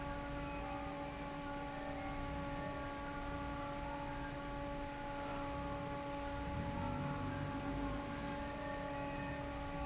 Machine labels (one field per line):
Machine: fan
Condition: normal